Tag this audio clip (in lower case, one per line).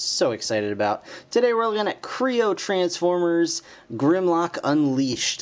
speech